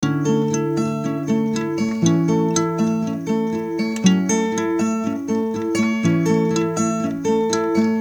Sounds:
guitar, plucked string instrument, acoustic guitar, musical instrument, music

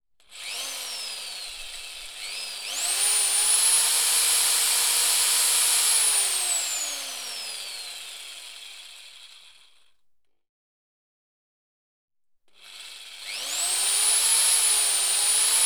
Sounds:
drill, power tool, tools

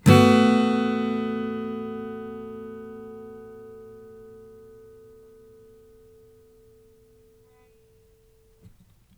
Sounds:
acoustic guitar, music, guitar, strum, musical instrument, plucked string instrument

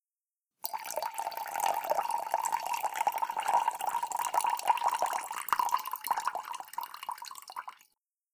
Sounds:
liquid, pour, fill (with liquid), trickle

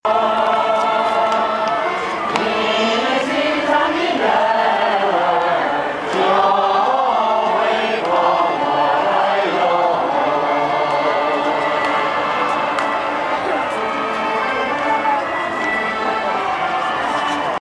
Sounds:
human voice, singing

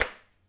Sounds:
tap

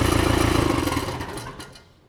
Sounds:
engine

